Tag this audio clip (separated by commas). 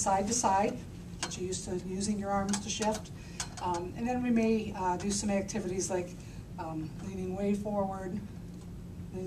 Speech